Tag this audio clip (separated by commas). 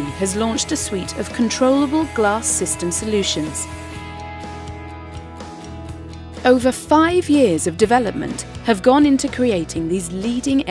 Speech, Music